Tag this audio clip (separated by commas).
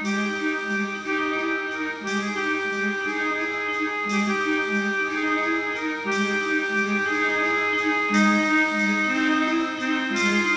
Music, Background music